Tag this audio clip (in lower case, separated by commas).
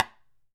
tap